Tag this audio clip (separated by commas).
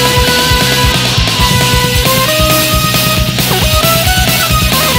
Music